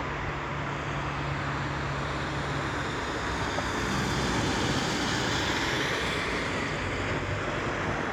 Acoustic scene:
street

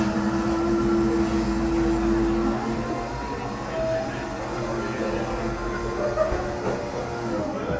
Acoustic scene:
cafe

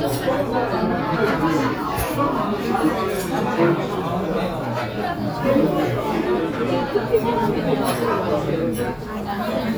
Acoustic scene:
restaurant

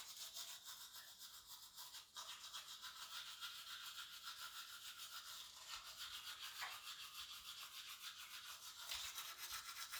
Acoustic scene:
restroom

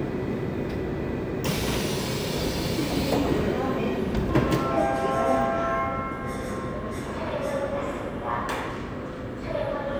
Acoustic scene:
subway train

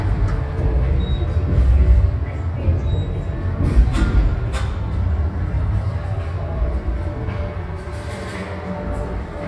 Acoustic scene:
subway station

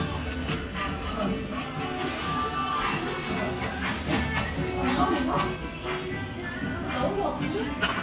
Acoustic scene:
restaurant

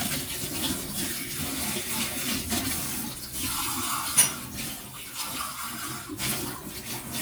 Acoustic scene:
kitchen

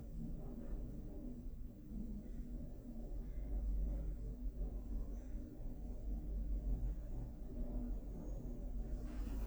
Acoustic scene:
elevator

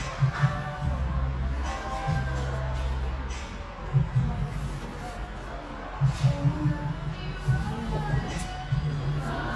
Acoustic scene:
cafe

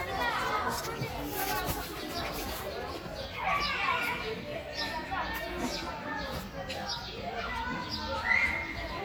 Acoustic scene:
park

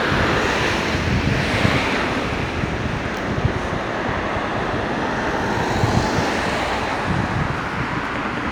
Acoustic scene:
street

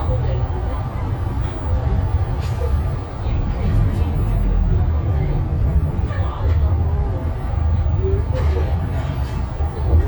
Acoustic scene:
bus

